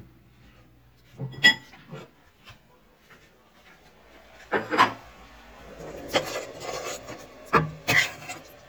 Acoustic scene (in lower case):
kitchen